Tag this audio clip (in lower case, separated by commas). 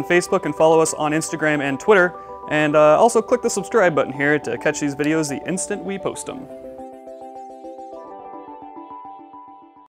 speech, music